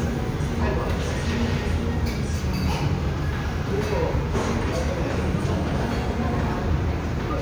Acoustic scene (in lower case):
restaurant